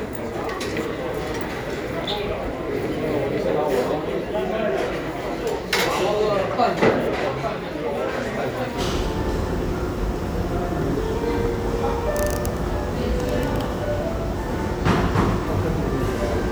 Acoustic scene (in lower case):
crowded indoor space